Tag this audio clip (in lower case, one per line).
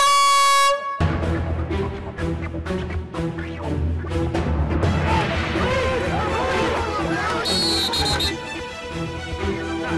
music
speech
air horn